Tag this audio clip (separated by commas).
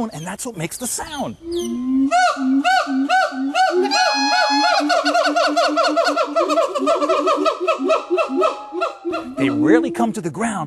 gibbon howling